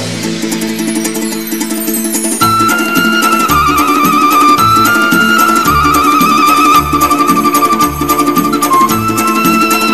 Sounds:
music, traditional music

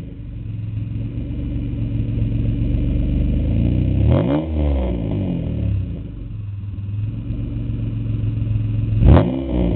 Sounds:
motor vehicle (road), car, vehicle

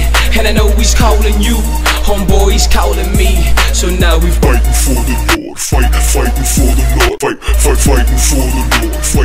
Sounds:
music, jazz, rhythm and blues, funk

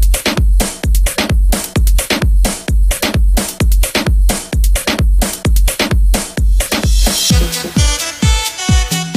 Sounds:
music, electronic music, techno

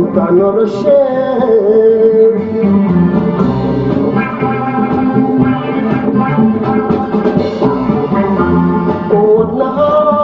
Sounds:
music, singing, hammond organ

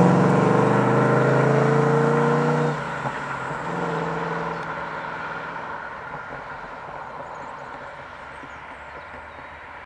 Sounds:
vehicle, accelerating, car

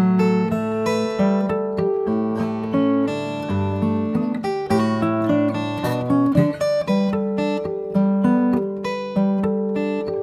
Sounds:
playing acoustic guitar, acoustic guitar, music, guitar, musical instrument, plucked string instrument

